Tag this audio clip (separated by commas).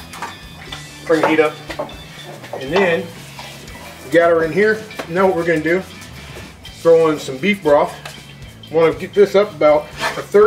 Music, dishes, pots and pans, Speech, inside a small room